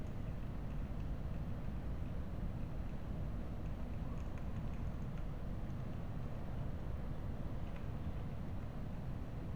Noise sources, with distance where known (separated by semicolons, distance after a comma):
background noise